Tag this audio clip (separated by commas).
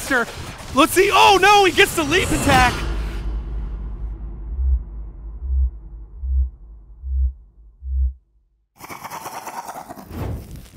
Speech